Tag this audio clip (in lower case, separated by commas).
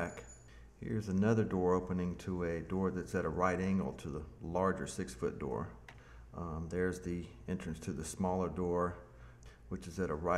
speech